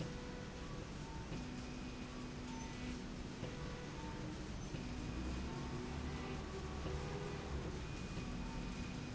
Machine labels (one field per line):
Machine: slide rail